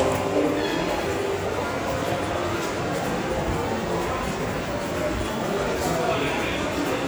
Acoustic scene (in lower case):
subway station